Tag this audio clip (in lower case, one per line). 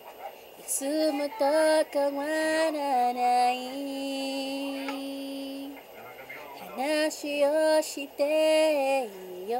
female singing